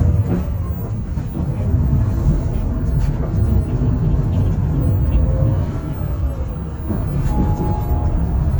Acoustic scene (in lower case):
bus